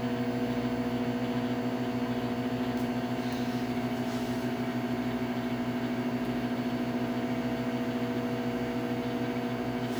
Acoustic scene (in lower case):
kitchen